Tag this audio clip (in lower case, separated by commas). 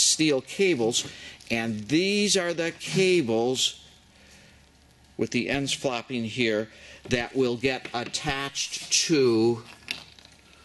speech